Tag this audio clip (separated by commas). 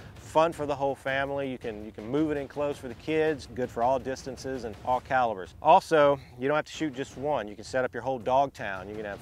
Speech